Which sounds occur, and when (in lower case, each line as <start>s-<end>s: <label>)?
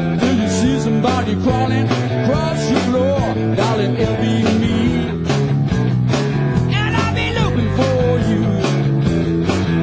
0.0s-9.8s: music
0.2s-1.8s: male singing
2.2s-3.4s: male singing
3.6s-5.1s: male singing
6.7s-8.5s: male singing
8.5s-8.5s: music